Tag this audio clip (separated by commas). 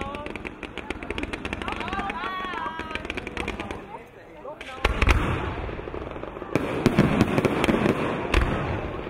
Speech, Fireworks